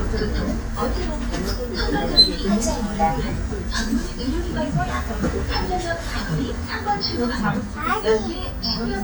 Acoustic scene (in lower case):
bus